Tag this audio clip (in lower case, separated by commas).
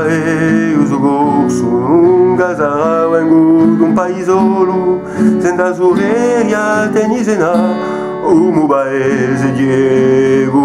plucked string instrument, strum, music, musical instrument, guitar, acoustic guitar